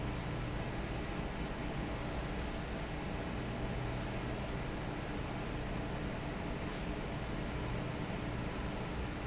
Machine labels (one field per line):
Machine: fan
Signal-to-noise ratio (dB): -6 dB